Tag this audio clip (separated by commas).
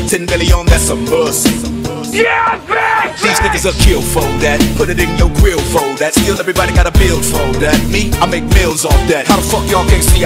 Music